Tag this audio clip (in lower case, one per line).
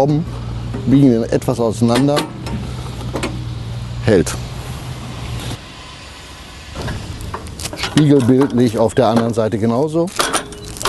speech